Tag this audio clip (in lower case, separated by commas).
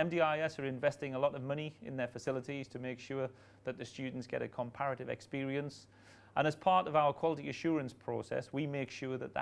speech